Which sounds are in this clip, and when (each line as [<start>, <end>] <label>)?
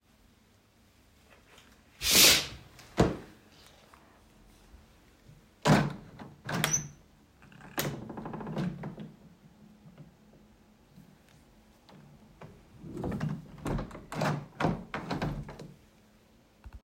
[1.96, 3.26] window
[5.58, 6.96] window
[7.72, 9.11] window
[12.97, 15.67] window